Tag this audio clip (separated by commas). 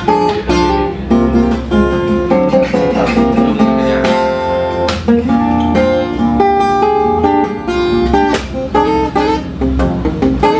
Musical instrument, Speech, Guitar, Acoustic guitar, Music, Strum, Plucked string instrument